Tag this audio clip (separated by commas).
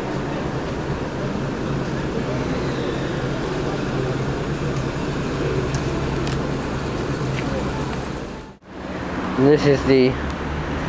Speech